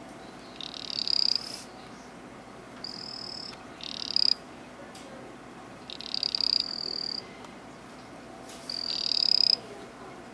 Frogs croaking loudly